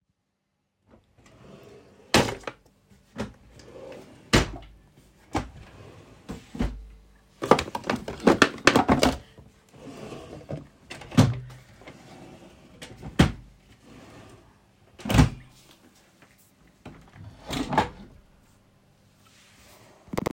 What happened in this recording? I opened my drawer, arranged it, closed the wardrobe and opened and closed the window